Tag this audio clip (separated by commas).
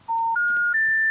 Alarm, Telephone